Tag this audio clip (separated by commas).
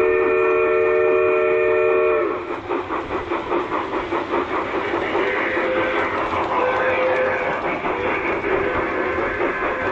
train whistling